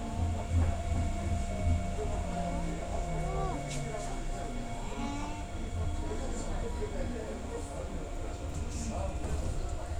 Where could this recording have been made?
on a subway train